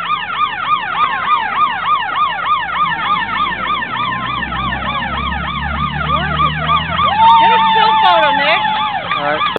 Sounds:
Speech

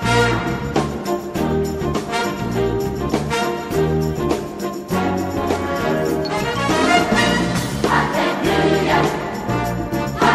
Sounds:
Music

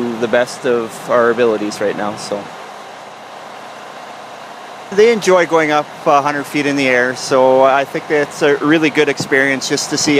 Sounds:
Vehicle, Speech

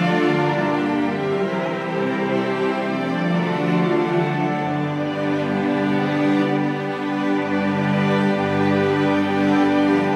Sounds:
playing cello

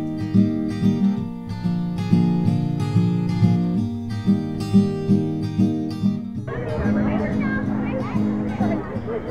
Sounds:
Music, Animal, Speech, Dog

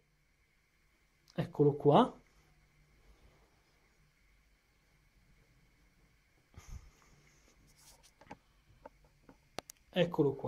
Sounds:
Speech

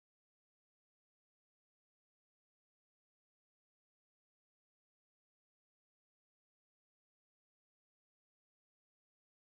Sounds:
chimpanzee pant-hooting

